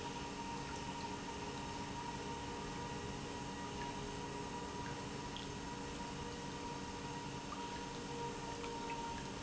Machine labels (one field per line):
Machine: pump